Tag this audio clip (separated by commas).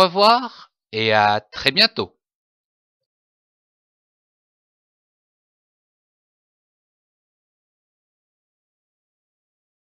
extending ladders